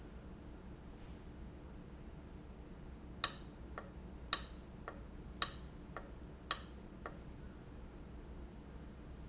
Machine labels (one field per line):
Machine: valve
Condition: abnormal